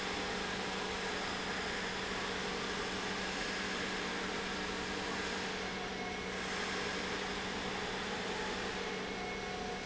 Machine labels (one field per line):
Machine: pump